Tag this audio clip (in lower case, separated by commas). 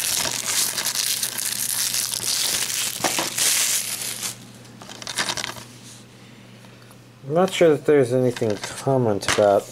tearing